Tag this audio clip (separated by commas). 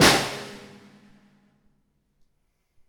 Musical instrument, Drum, Percussion, Music, Snare drum